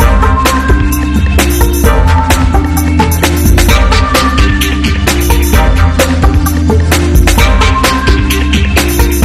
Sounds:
Music

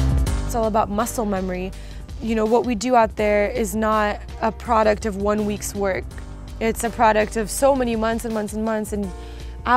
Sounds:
Speech, Music

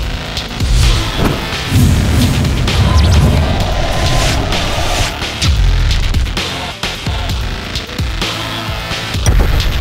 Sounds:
Music

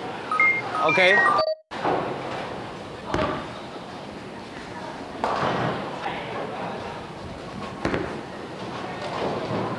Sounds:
bowling impact

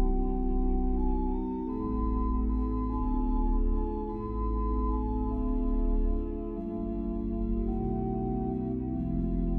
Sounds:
Music

